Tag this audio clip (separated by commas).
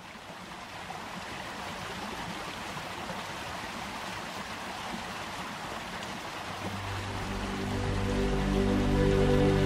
Music